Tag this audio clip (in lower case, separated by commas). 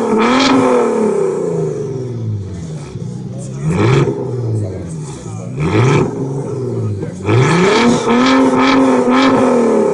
speech